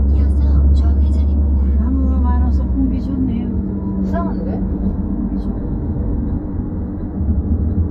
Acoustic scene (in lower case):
car